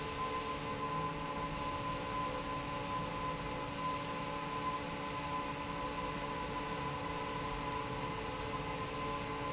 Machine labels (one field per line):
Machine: fan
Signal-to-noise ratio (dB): -6 dB